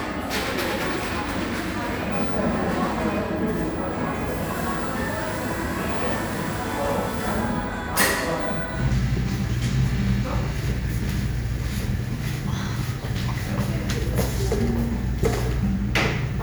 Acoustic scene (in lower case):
cafe